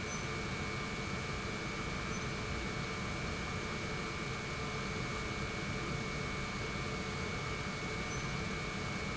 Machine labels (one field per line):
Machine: pump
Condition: normal